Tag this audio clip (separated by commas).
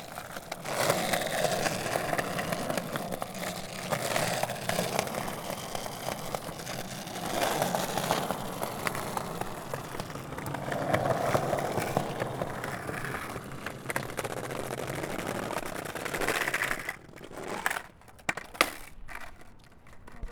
Vehicle, Skateboard